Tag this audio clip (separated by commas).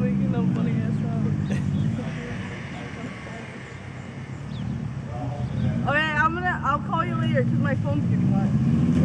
Speech